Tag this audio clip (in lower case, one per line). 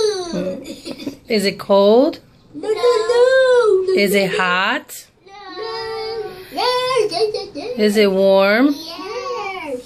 inside a small room
child singing
kid speaking
speech